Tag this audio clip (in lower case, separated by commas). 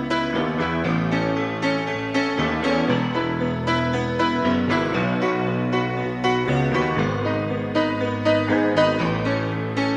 music, lullaby